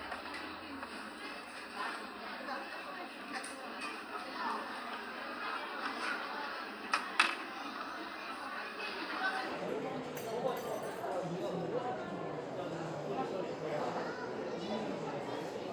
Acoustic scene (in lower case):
restaurant